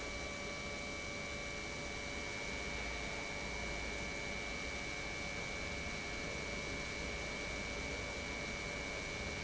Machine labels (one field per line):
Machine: pump